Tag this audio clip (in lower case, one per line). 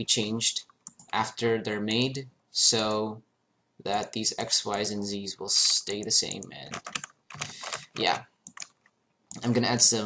speech